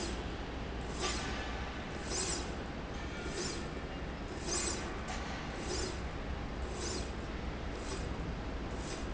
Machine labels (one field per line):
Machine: slide rail